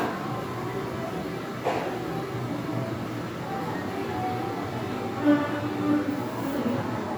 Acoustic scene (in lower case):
crowded indoor space